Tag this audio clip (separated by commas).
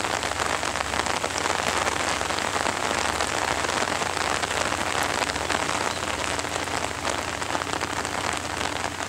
raining